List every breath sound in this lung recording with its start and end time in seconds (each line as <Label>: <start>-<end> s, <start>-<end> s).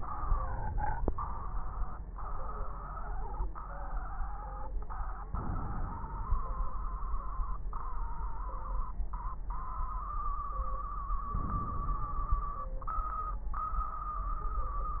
Inhalation: 5.24-6.71 s, 11.32-12.59 s
Crackles: 5.24-6.71 s, 11.32-12.59 s